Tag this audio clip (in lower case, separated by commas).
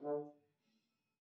music, musical instrument, brass instrument